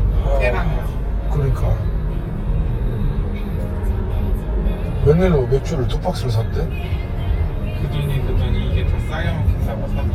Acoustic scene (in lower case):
car